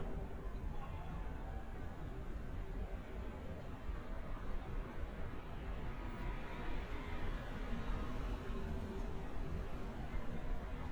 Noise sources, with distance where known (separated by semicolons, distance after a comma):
small-sounding engine, near